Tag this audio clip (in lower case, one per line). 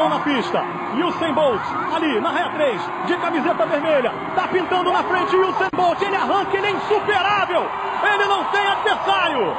outside, urban or man-made
speech